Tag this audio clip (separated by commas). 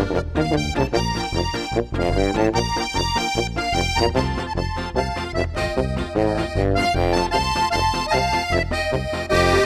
playing accordion, Music, Musical instrument, Accordion